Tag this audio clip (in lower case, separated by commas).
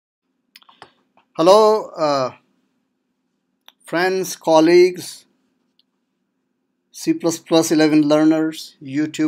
inside a small room, speech